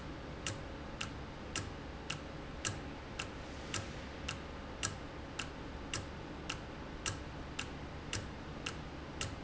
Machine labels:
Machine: valve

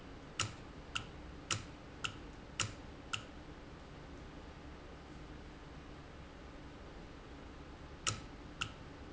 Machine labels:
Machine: valve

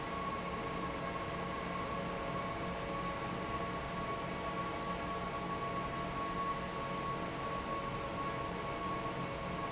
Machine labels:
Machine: fan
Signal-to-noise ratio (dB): -6 dB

